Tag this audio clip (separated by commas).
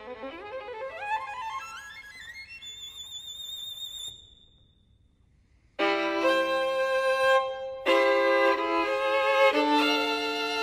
Music